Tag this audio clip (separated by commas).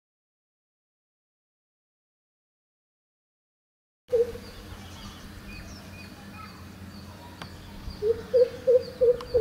cuckoo bird calling